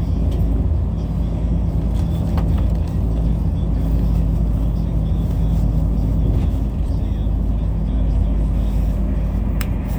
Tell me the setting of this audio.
bus